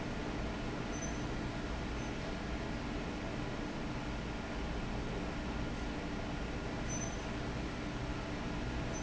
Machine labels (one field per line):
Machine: fan